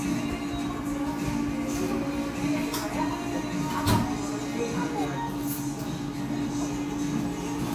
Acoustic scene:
cafe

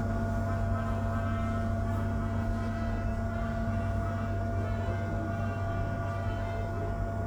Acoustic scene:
subway station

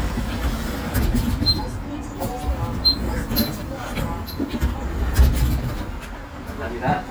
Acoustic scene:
bus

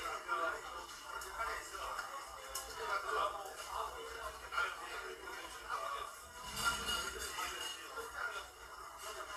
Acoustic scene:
crowded indoor space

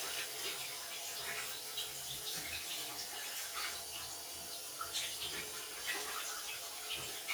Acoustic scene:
restroom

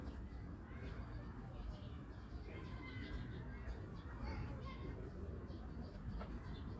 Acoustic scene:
park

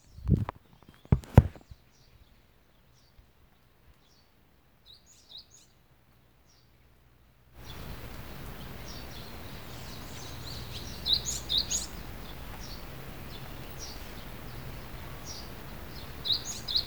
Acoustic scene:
park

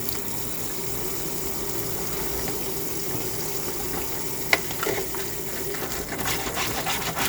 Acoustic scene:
kitchen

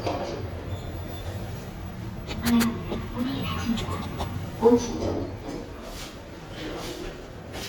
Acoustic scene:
elevator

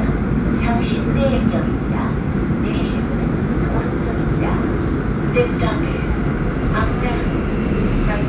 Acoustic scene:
subway train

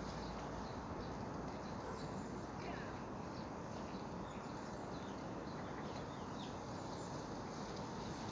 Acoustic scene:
park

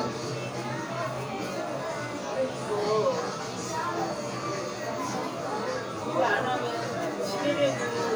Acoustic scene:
crowded indoor space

